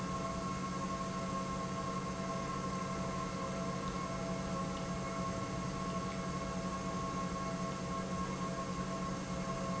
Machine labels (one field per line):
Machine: pump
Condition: normal